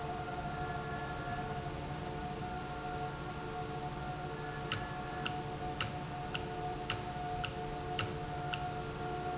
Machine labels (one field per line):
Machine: valve